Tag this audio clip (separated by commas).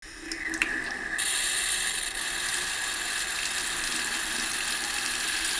dribble, home sounds, Sink (filling or washing), Water tap, Liquid, Pour